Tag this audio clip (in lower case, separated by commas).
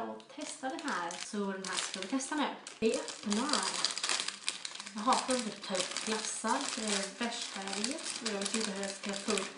speech